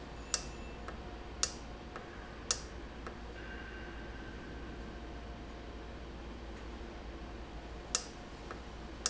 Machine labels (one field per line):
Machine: valve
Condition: normal